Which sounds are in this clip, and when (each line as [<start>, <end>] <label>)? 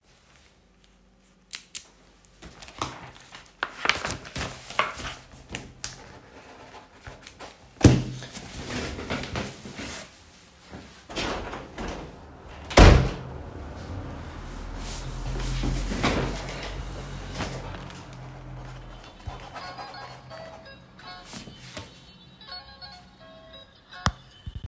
[8.18, 10.94] footsteps
[10.89, 13.48] window
[13.45, 18.12] footsteps
[19.41, 24.44] phone ringing